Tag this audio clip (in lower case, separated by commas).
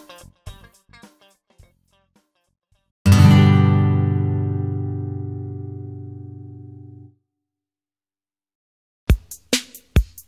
guitar, strum, music